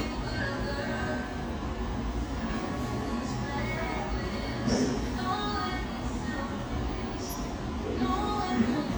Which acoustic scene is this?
cafe